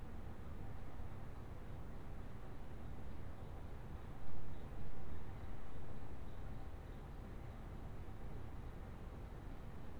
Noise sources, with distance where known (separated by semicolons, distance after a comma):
background noise